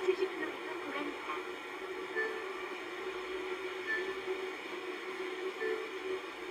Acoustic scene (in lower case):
car